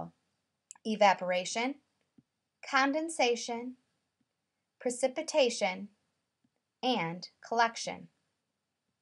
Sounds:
speech

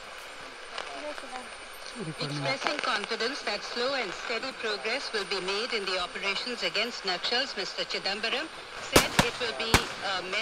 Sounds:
speech

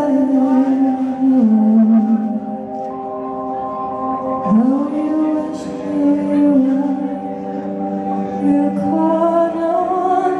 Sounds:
music

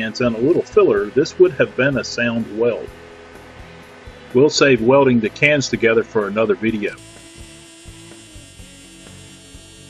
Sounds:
speech
music

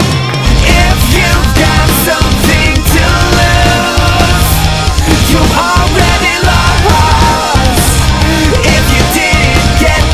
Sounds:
music

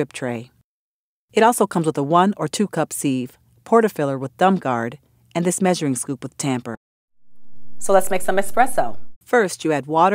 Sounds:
speech

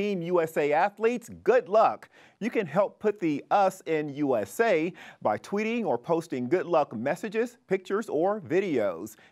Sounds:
speech

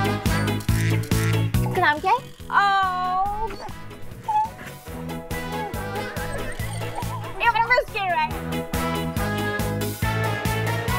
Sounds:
speech
music

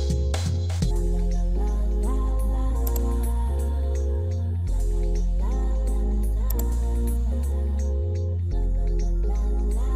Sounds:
music

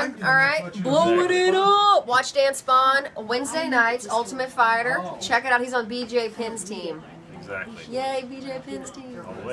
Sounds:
speech

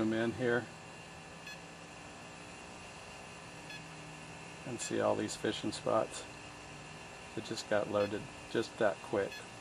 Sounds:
sonar

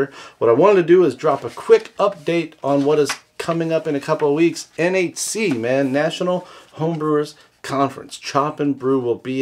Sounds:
speech

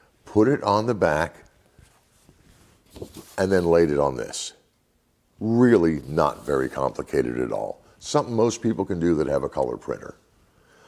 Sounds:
speech

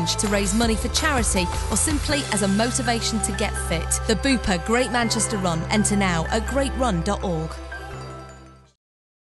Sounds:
music
speech

